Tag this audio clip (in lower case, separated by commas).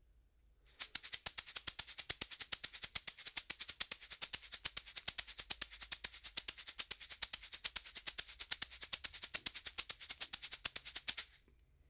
percussion, musical instrument, rattle (instrument), music